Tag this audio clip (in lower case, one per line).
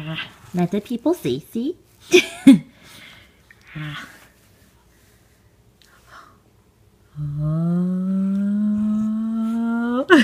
speech